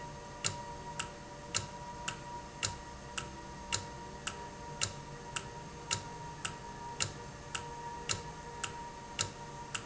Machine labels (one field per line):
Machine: valve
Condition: normal